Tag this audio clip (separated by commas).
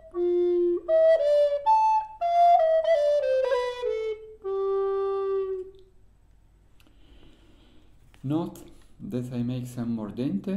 Music, woodwind instrument, Flute